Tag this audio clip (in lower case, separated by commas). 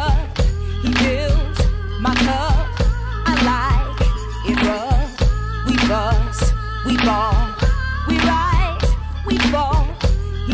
music